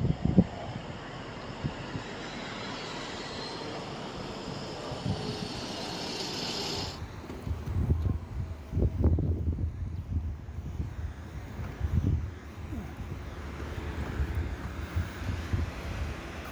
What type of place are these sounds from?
street